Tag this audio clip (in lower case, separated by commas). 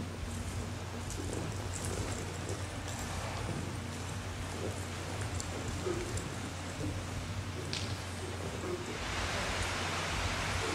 animal